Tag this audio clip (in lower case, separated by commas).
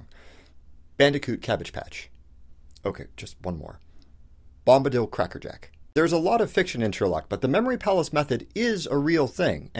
narration, speech